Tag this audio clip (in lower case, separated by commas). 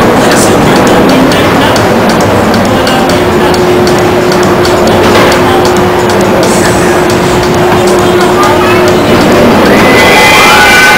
speech, music